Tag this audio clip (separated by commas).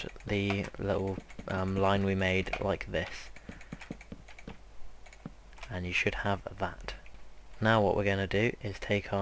Speech